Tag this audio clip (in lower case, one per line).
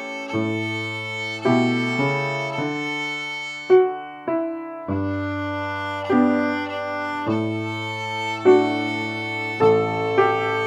violin
music
musical instrument
classical music